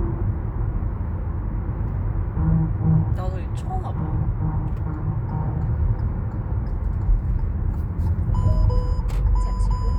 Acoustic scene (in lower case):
car